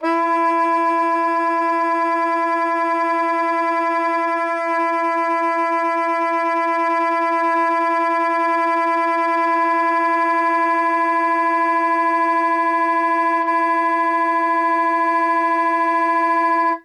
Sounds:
Musical instrument, woodwind instrument, Music

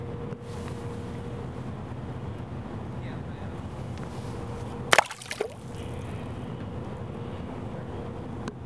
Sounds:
splatter, Liquid

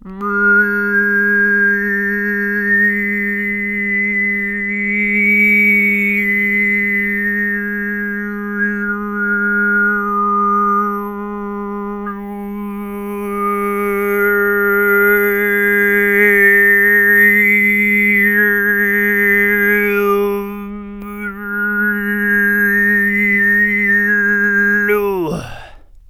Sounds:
Singing, Human voice

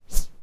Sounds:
swish

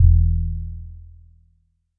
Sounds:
Musical instrument, Music, Keyboard (musical), Piano

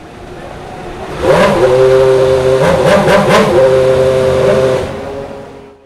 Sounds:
revving, Race car, Car, Motor vehicle (road), Vehicle, Engine

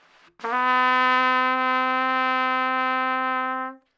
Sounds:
Trumpet, Music, Brass instrument, Musical instrument

